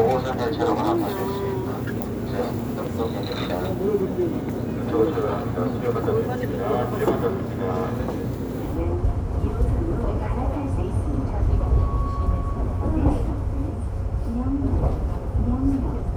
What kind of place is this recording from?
subway train